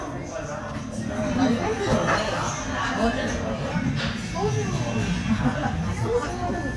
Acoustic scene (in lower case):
restaurant